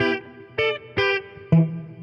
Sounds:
plucked string instrument
musical instrument
guitar
electric guitar
music

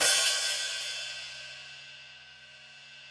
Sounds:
crash cymbal
hi-hat
music
cymbal
musical instrument
percussion

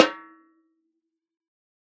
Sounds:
snare drum
percussion
drum
musical instrument
music

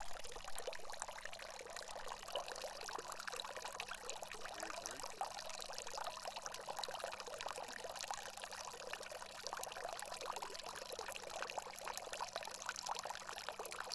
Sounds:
stream
man speaking
dribble
water
human voice
liquid
pour
speech

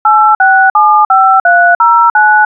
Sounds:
alarm
telephone

